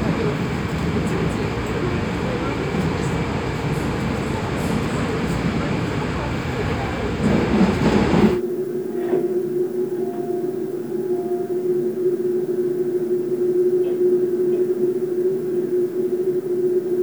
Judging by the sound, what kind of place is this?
subway train